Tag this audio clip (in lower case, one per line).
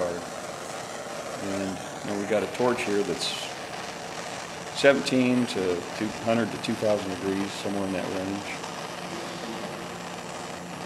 speech
spray